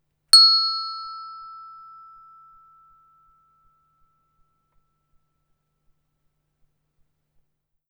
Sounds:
bell

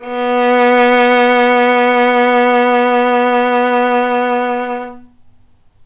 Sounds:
musical instrument
bowed string instrument
music

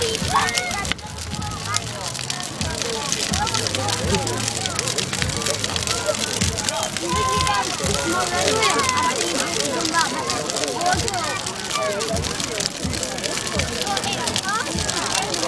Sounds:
crackle
fire

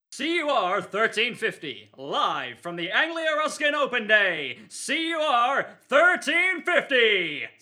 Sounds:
human voice

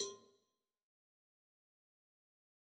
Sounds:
cowbell
bell

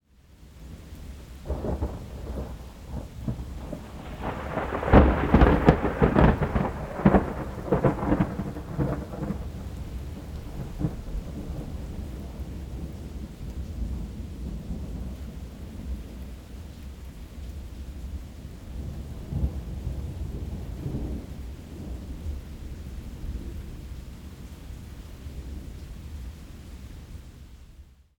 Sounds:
thunderstorm
thunder
rain
water

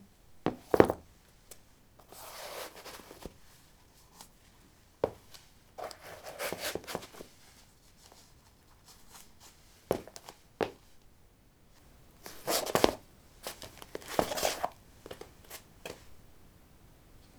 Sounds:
footsteps

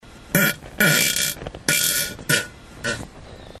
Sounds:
fart

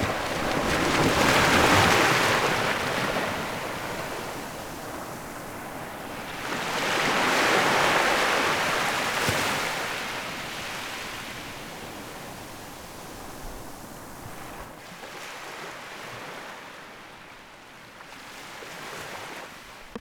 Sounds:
water
waves
ocean

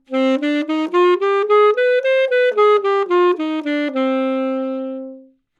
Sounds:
musical instrument
music
woodwind instrument

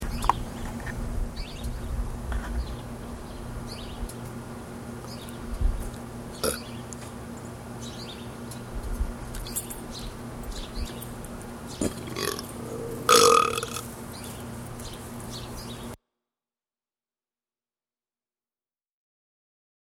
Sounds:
burping

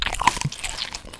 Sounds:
chewing

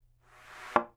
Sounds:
thump

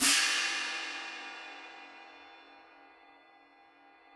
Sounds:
hi-hat
musical instrument
music
percussion
cymbal

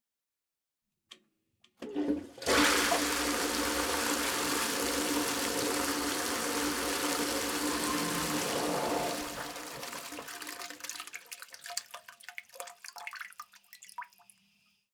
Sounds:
domestic sounds
toilet flush

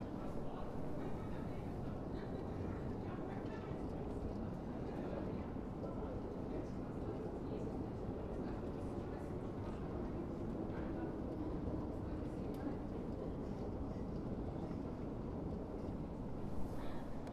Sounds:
vehicle
rail transport
metro

